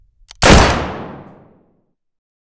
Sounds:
explosion, gunfire

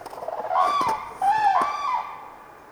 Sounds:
wild animals, bird, animal, bird song

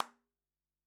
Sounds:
clapping, hands

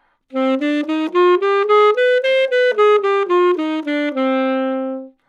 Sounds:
woodwind instrument, musical instrument, music

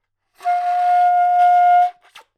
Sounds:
musical instrument, music, wind instrument

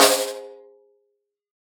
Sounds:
snare drum, music, drum, musical instrument, percussion

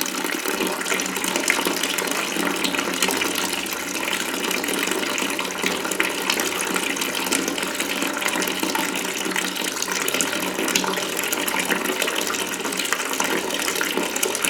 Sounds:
faucet, domestic sounds

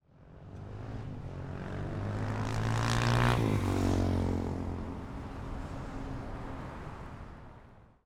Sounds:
vehicle, motorcycle, motor vehicle (road), engine

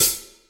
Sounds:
music, hi-hat, percussion, cymbal, musical instrument

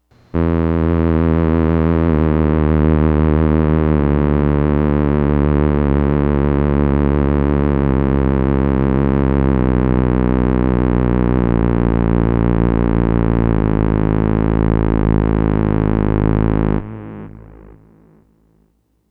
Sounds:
musical instrument, music

